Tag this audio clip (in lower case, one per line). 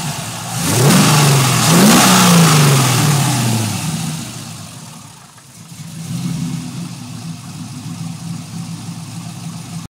engine
medium engine (mid frequency)
car
vehicle
idling